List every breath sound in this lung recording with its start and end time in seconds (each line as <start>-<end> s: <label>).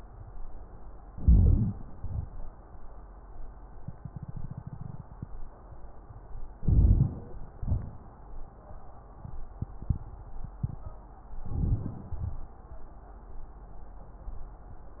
1.01-1.76 s: crackles
1.04-1.80 s: inhalation
1.90-2.60 s: exhalation
6.53-7.43 s: inhalation
6.53-7.43 s: wheeze
6.53-7.43 s: crackles
7.51-8.23 s: exhalation
7.51-8.23 s: crackles
11.50-12.22 s: inhalation
12.20-12.60 s: exhalation